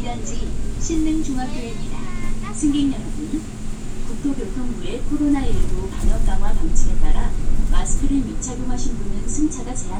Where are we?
on a bus